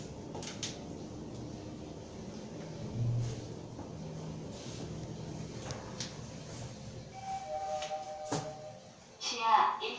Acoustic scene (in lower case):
elevator